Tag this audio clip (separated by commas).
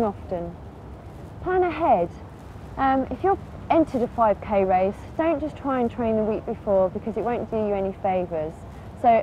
Speech, outside, rural or natural